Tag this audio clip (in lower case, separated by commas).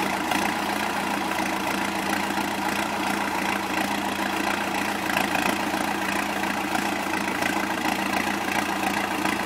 vehicle